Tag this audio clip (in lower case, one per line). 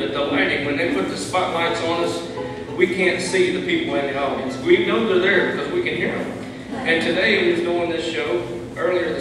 speech
music